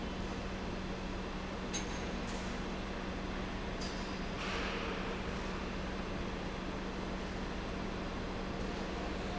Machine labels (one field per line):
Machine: pump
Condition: normal